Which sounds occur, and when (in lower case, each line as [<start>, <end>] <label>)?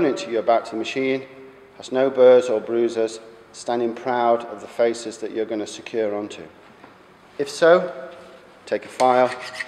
[0.00, 1.22] man speaking
[0.00, 9.65] mechanisms
[1.28, 1.74] echo
[1.74, 3.25] man speaking
[3.48, 6.51] man speaking
[6.54, 6.89] generic impact sounds
[7.36, 7.86] man speaking
[7.91, 8.38] echo
[8.60, 9.32] man speaking
[8.80, 9.65] filing (rasp)